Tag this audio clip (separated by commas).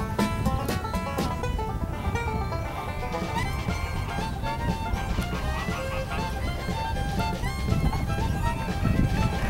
Fowl, Goose